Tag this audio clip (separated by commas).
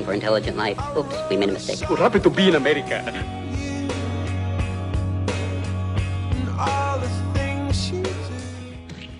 Speech, Music